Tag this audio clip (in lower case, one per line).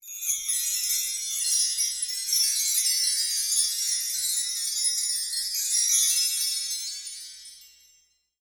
chime
wind chime
bell